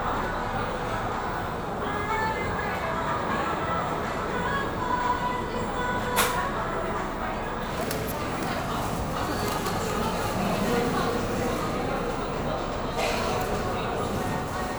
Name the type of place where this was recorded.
cafe